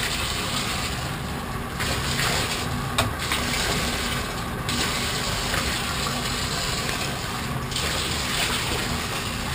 Water is splashing